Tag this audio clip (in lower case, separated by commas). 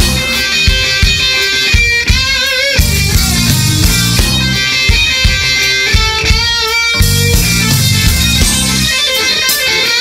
music, tapping (guitar technique)